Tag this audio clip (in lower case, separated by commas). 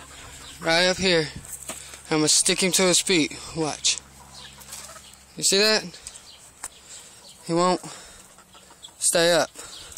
crowing, animal, speech